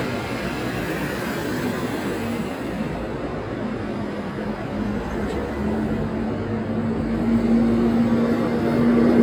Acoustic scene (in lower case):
street